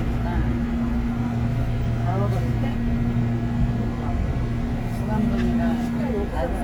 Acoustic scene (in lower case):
subway train